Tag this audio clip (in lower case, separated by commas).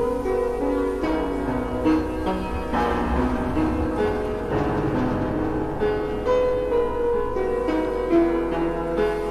music, sound effect